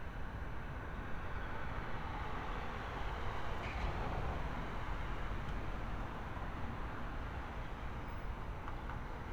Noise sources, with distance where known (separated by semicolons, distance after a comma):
medium-sounding engine, far